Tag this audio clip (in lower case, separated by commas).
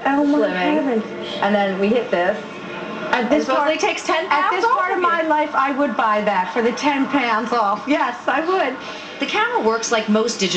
speech